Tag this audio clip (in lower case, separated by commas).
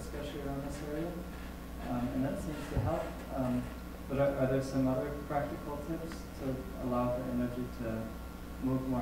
speech